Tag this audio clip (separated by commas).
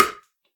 Tap